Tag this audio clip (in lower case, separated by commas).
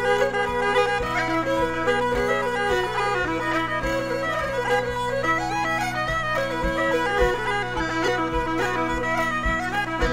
music